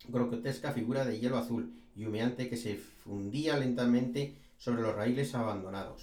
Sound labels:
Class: speech